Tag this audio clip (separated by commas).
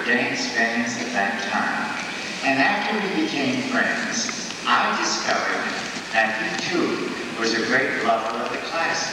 Speech